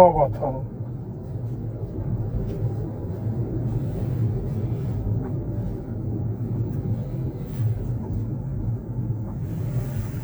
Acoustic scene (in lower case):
car